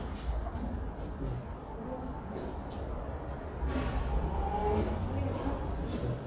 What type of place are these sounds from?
elevator